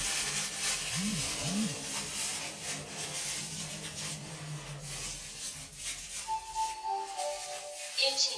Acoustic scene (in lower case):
elevator